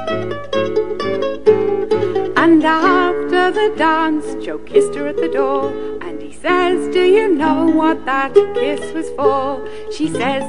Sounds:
music
mandolin
ukulele

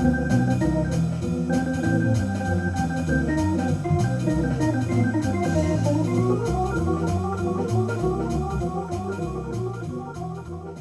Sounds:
playing hammond organ

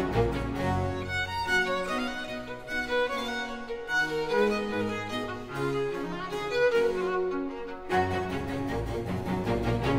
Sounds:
musical instrument
violin
music

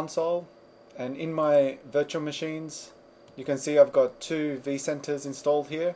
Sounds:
speech

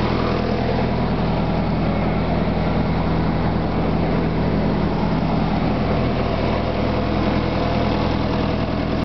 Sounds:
vehicle
engine
idling

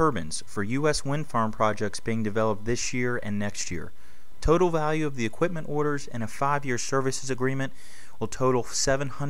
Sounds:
speech

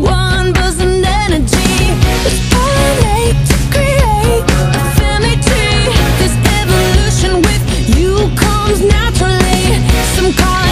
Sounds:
music

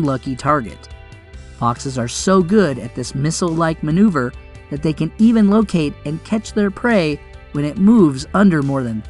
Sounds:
speech
music

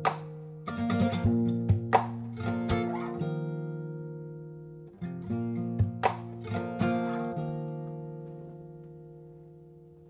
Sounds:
musical instrument
music
plucked string instrument
acoustic guitar
guitar

